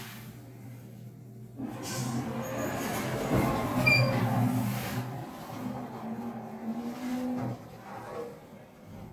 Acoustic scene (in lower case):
elevator